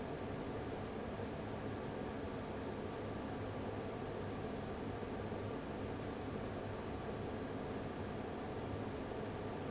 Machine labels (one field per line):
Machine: fan